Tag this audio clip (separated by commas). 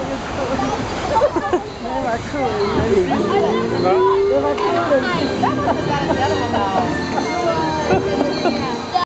Speech, Music